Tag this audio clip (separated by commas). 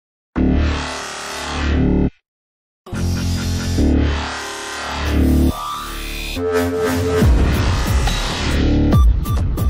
Music